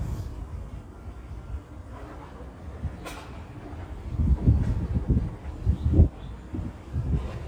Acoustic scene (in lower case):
residential area